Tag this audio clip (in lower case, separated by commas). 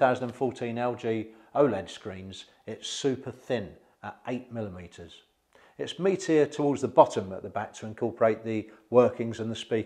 speech